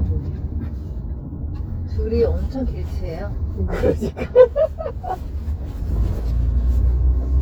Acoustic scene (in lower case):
car